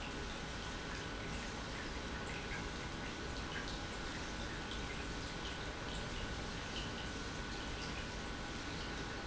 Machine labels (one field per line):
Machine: pump